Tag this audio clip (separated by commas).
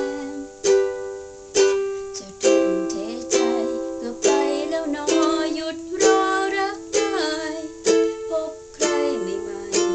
inside a small room, Music, Singing, Ukulele